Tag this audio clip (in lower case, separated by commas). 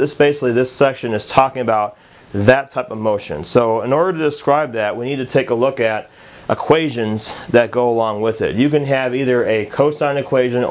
speech